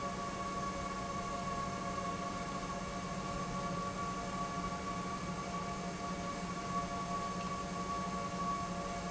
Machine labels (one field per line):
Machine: pump